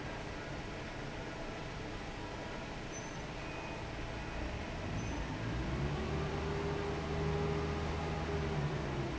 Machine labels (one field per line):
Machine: fan